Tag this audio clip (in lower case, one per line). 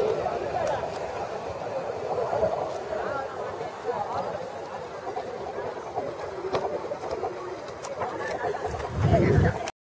speech